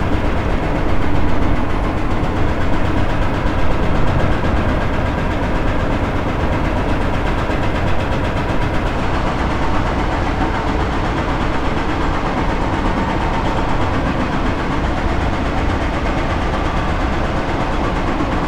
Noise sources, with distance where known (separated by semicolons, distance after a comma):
unidentified impact machinery